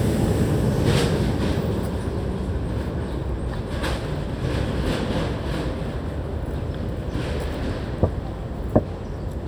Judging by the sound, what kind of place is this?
residential area